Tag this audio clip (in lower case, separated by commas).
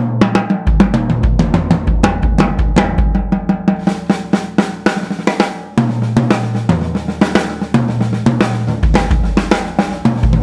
drum roll, drum kit, percussion, drum, bass drum, snare drum, rimshot